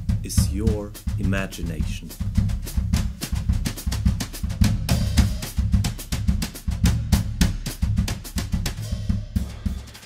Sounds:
cymbal, percussion, drum kit, drum, snare drum, bass drum, drum roll, rimshot, hi-hat

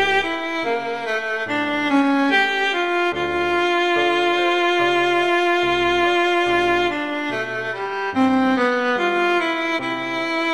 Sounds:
fiddle, bowed string instrument

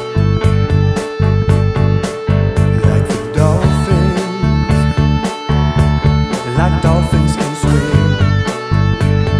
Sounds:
music, guitar, electric guitar, musical instrument, bass guitar

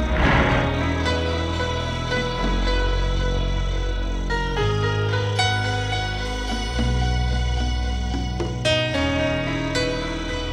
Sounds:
music

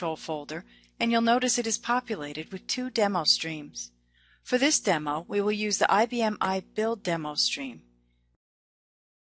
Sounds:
speech

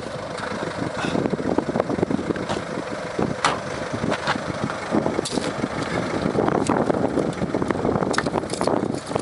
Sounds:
motor vehicle (road), car, vehicle

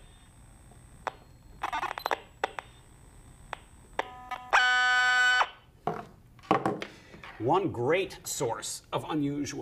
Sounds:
speech

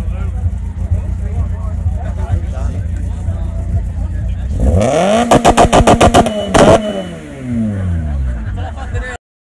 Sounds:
speech

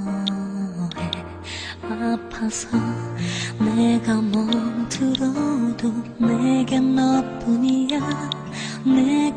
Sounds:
music

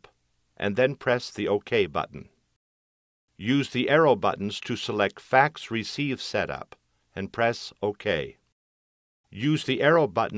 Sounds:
speech

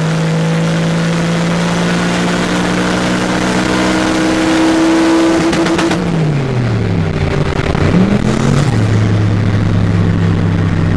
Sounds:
vehicle, car

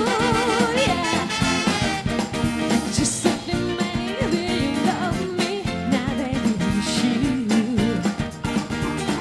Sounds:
music, ska, singing

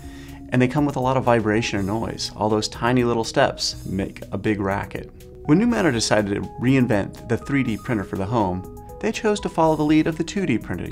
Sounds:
music, speech

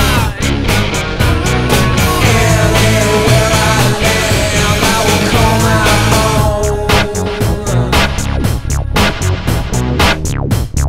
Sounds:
music, drum machine

